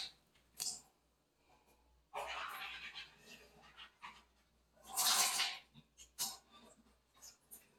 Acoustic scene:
restroom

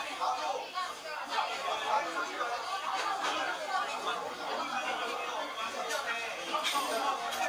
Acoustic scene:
restaurant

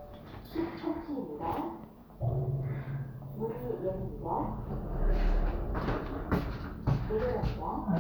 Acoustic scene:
elevator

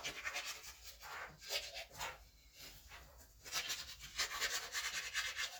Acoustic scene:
restroom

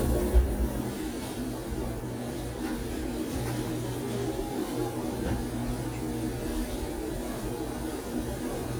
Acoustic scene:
cafe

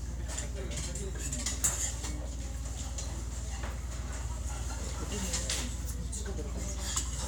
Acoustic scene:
restaurant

